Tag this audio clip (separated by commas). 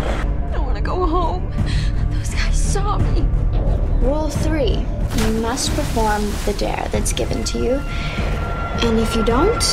Music, Speech